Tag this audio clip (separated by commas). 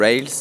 Speech, Human voice